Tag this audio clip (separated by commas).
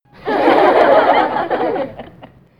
Laughter, Human voice, Chuckle